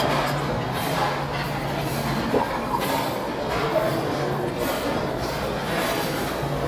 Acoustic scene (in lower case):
restaurant